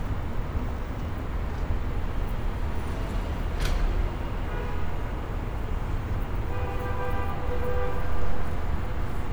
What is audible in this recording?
car horn